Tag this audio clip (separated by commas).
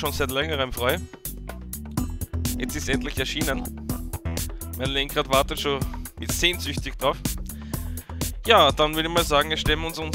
Music, Speech